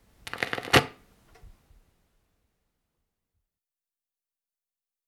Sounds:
Crackle

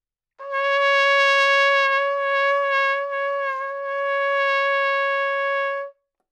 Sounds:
Trumpet, Music, Musical instrument, Brass instrument

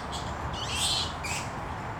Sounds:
Squeak

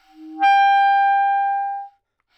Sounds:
Music, Musical instrument, woodwind instrument

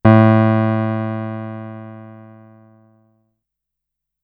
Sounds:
Keyboard (musical), Musical instrument, Piano, Music

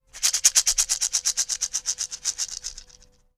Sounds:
Music, Rattle, Percussion, Musical instrument, Rattle (instrument)

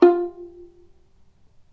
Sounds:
Music, Bowed string instrument, Musical instrument

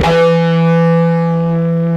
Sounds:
Music, Plucked string instrument, Musical instrument, Electric guitar, Guitar

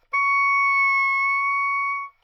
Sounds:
Musical instrument, woodwind instrument, Music

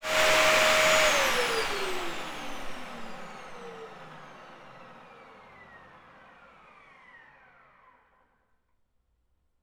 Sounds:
home sounds

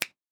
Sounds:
Hands, Finger snapping

